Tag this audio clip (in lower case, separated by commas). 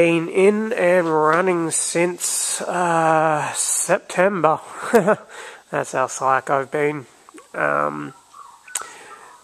inside a large room or hall, speech